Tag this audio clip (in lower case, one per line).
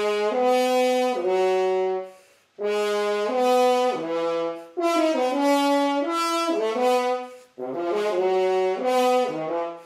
french horn
brass instrument